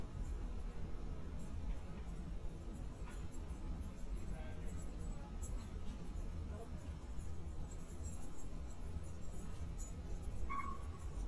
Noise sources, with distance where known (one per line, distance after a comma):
person or small group talking, near